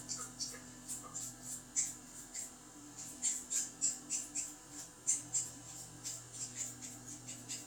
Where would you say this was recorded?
in a restroom